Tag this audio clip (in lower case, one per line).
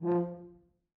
brass instrument
musical instrument
music